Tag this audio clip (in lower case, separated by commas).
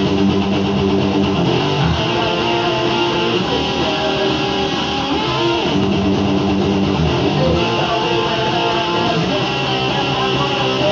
musical instrument, guitar, music